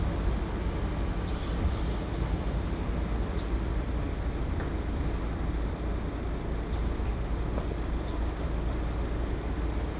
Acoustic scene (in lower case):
residential area